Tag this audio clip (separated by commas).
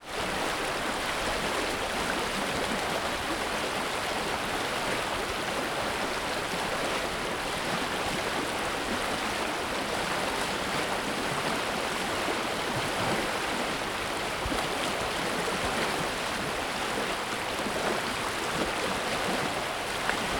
Water, Stream